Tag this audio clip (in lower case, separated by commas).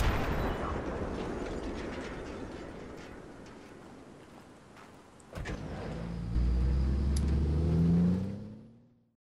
outside, rural or natural, artillery fire